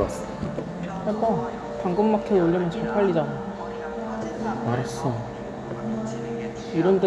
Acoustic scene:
cafe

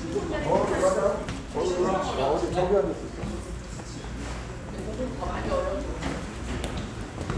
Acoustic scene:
restaurant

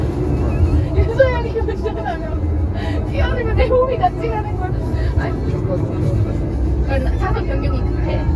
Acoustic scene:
car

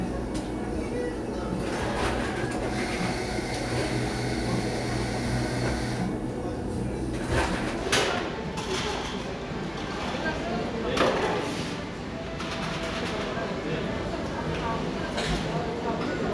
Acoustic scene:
cafe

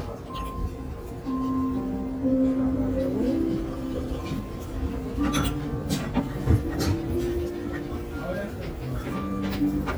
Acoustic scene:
restaurant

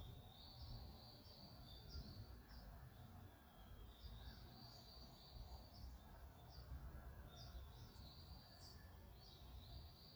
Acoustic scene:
park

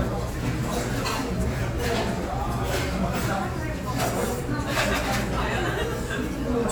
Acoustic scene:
restaurant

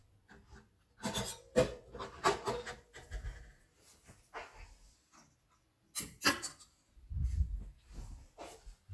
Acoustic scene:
kitchen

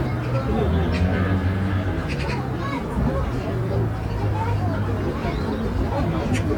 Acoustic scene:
residential area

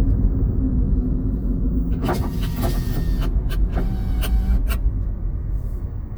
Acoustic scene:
car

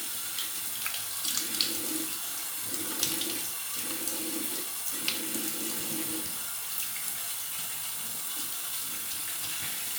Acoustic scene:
restroom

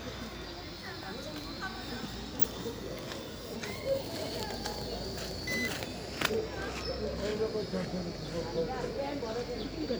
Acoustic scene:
park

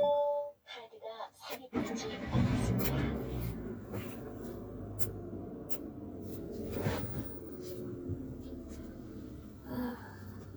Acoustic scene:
car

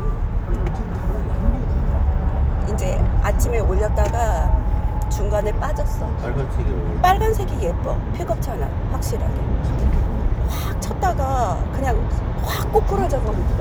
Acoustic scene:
car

